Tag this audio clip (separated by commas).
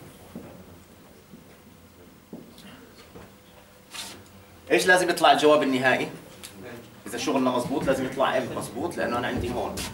Speech